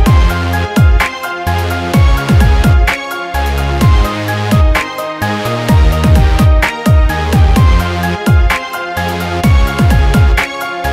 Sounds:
music

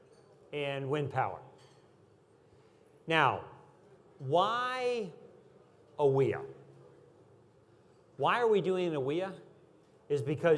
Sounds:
speech

